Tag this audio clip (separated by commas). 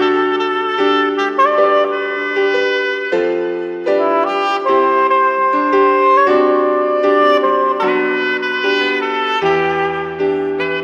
Tender music, Music